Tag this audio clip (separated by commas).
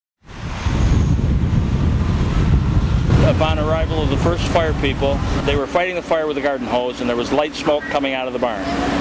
Vehicle, outside, urban or man-made, Speech, Fire